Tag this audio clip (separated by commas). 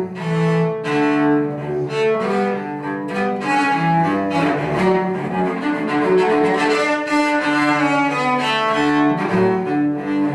Cello, Music, Musical instrument